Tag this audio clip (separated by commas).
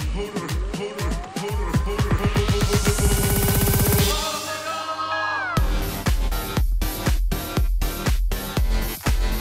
Music